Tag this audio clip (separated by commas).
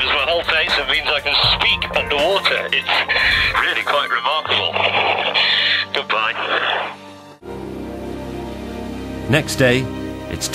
Radio